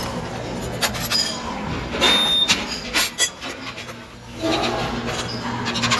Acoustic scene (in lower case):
restaurant